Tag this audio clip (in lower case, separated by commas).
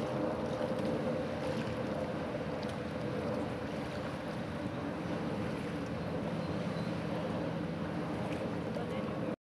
water vehicle, speedboat